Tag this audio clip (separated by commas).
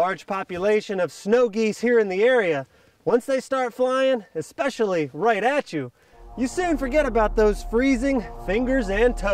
Speech